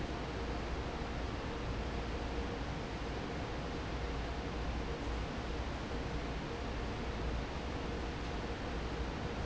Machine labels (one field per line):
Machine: fan